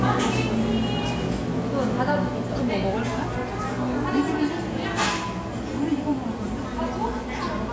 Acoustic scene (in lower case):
cafe